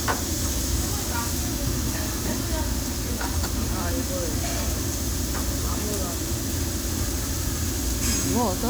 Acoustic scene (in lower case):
restaurant